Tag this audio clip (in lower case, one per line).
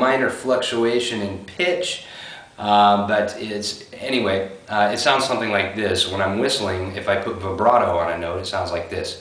speech
whistling